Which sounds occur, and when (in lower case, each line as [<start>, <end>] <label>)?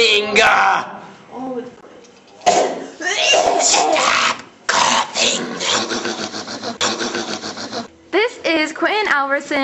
[0.00, 0.83] man speaking
[0.00, 9.63] mechanisms
[1.31, 1.72] woman speaking
[2.43, 2.65] generic impact sounds
[3.01, 3.95] cough
[3.58, 4.30] speech
[4.68, 5.06] speech
[5.15, 5.84] speech
[5.74, 7.88] human voice
[8.13, 9.63] woman speaking